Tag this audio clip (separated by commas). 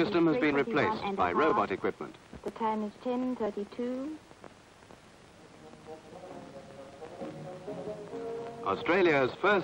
Music, Speech